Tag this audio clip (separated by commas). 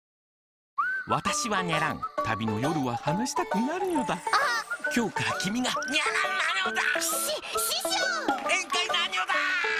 Music, Speech